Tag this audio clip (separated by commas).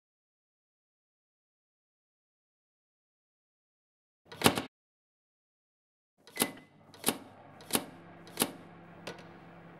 door slamming